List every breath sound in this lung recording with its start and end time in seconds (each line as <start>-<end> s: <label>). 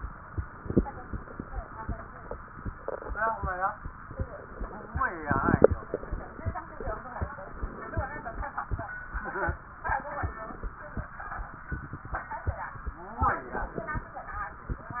0.74-2.12 s: inhalation
4.04-5.08 s: inhalation
7.41-8.56 s: inhalation
13.20-14.23 s: inhalation